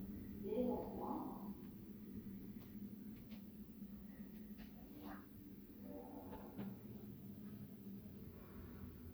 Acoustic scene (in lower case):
elevator